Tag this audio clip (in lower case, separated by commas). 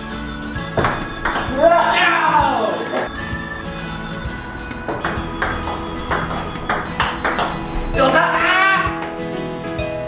playing table tennis